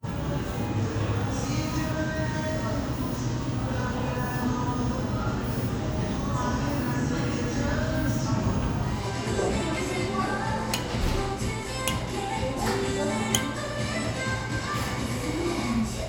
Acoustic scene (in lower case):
cafe